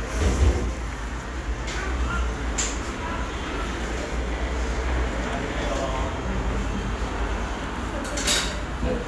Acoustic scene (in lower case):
cafe